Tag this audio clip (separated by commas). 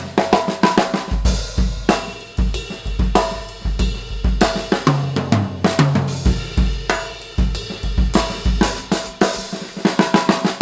Drum roll, Percussion, Snare drum, Rimshot, Drum, Drum kit, Bass drum